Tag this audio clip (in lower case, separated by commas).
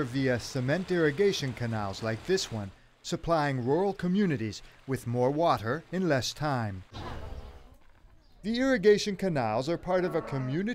speech, stream